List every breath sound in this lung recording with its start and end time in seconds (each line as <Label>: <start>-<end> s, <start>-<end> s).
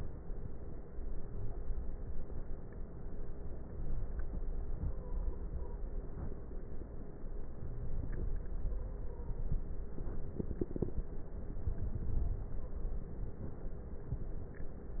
Inhalation: 7.51-9.14 s, 11.35-13.07 s
Wheeze: 3.64-4.06 s
Stridor: 4.66-5.86 s
Crackles: 11.35-13.07 s